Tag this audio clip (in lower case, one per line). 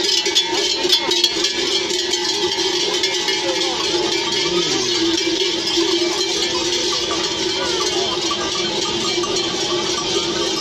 bovinae cowbell